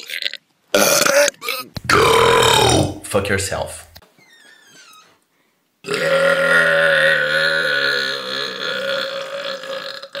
A male is releasing gas by burping very loudly